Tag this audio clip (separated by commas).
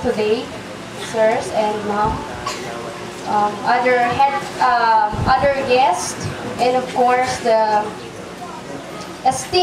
Speech, Narration, Female speech